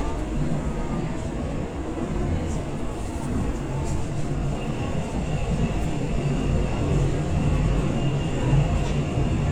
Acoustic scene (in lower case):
subway train